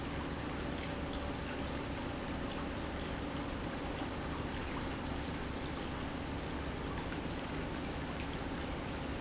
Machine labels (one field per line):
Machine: pump